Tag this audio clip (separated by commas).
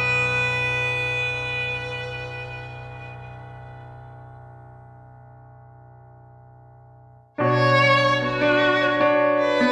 fiddle, Music, Musical instrument